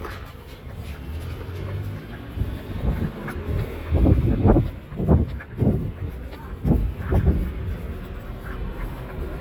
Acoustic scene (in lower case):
residential area